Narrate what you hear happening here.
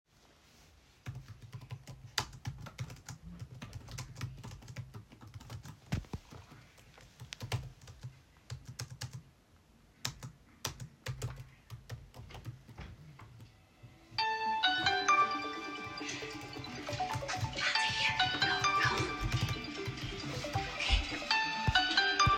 I placed the phone on my desk and began typing a document. While I was typing, another phone nearby started ringing, creating an overlapping sound event.